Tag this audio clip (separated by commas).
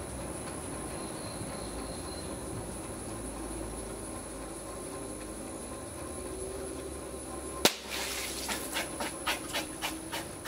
outside, rural or natural